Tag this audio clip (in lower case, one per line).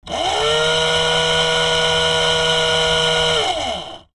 tools